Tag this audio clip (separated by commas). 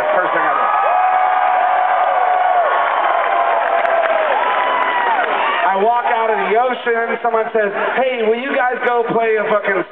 Speech